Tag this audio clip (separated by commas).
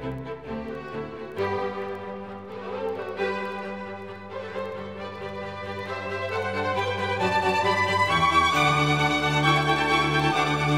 Music